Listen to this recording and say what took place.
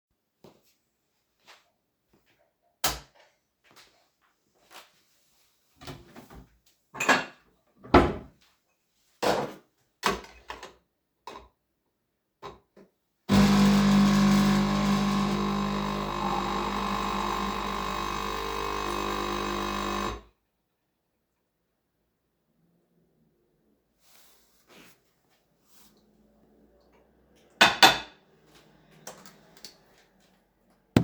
I turned on the light in the kitchen, took the cup out of the cupboard, and placed it in the coffee machine. Once the machine had finished, I took the cup out of the machine.